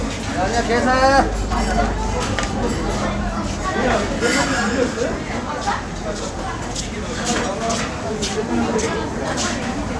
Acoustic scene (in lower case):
restaurant